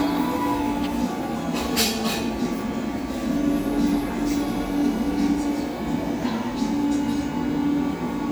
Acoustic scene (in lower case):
cafe